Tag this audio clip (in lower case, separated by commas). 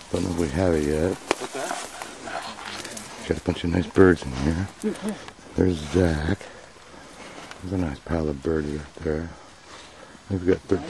speech, animal